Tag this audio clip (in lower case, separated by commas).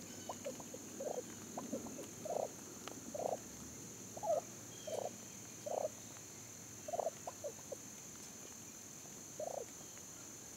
gobble, fowl, turkey